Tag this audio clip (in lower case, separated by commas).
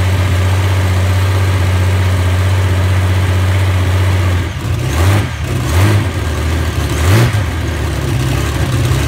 engine, vehicle, idling